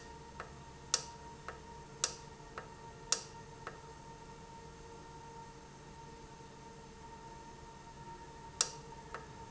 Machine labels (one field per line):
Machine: valve